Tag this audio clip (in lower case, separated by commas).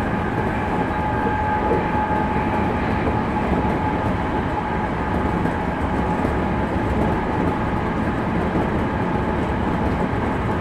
vehicle, train